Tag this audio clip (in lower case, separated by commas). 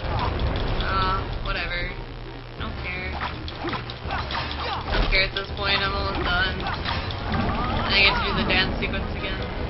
music, speech